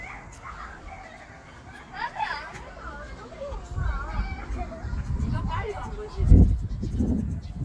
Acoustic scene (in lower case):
park